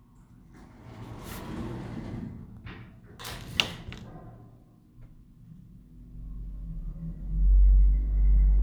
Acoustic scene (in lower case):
elevator